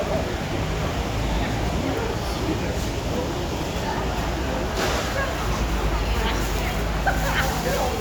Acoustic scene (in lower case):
residential area